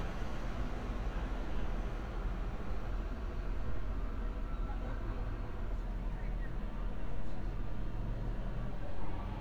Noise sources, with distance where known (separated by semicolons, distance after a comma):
engine of unclear size; unidentified human voice, far